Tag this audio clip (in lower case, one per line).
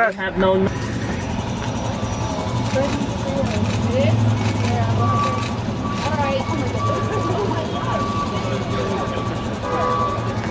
speech